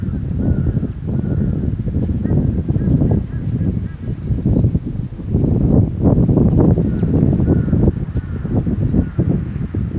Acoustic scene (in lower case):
park